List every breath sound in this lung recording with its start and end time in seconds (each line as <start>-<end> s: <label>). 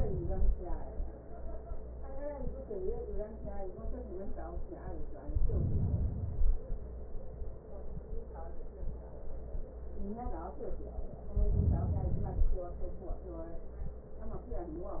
5.20-6.61 s: inhalation
11.29-12.70 s: inhalation